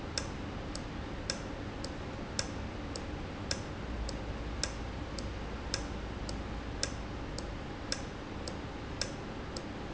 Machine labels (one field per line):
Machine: valve